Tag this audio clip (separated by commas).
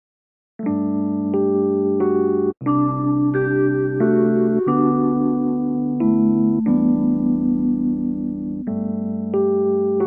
Music